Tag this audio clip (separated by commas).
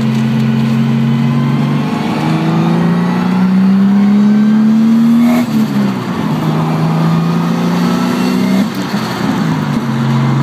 Vehicle, Motor vehicle (road), Car